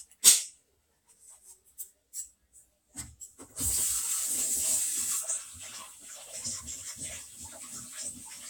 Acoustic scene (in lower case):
kitchen